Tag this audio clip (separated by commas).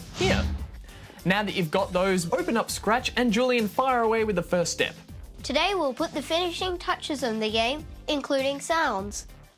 Speech, Music